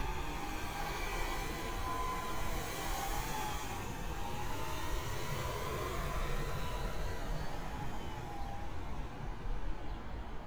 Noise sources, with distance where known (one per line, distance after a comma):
engine of unclear size, far